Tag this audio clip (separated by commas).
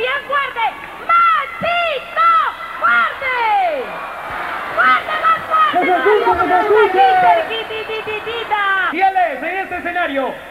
Speech